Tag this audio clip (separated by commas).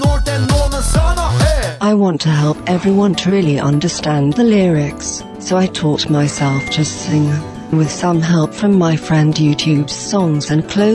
Speech, Music